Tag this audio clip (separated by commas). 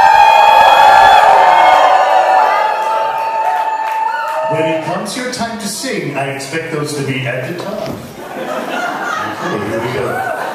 Tap, Speech